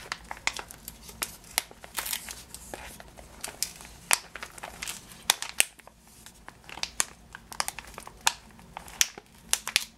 Plastic crumpling and crinkling